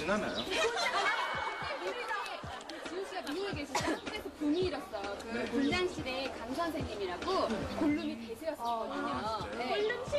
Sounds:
music, speech

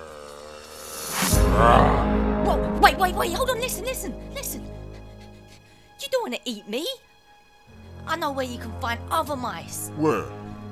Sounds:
music, speech

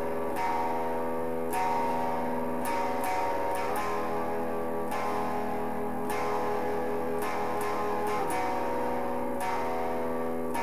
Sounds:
music, guitar, musical instrument, electric guitar, plucked string instrument, strum

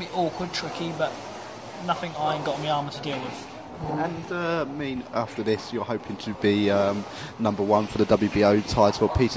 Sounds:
speech

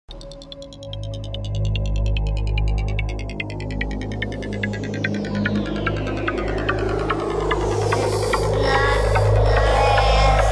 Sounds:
trance music, music, electronic music

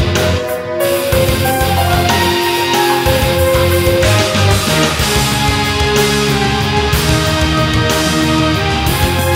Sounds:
music

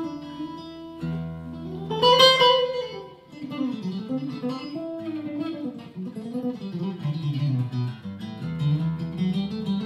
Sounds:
music, acoustic guitar, musical instrument

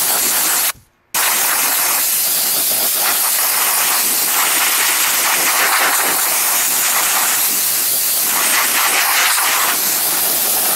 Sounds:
steam, hiss

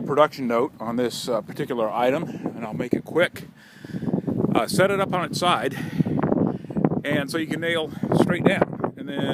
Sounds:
speech

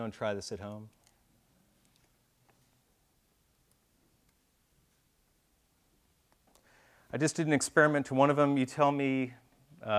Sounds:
speech

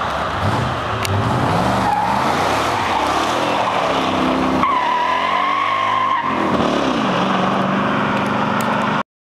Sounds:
vehicle, car

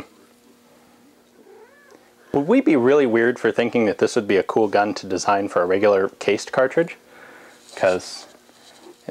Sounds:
speech, inside a small room

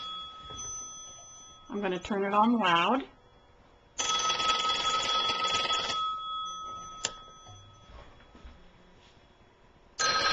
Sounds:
speech, telephone bell ringing, telephone

